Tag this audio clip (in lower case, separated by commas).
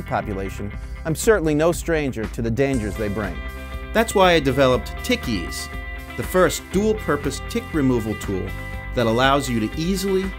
speech, music